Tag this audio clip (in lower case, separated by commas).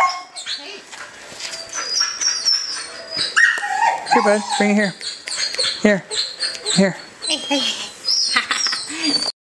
animal, speech